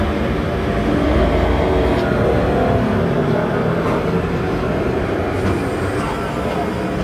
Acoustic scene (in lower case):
street